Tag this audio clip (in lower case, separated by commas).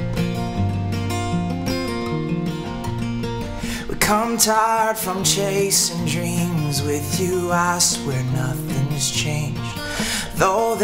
music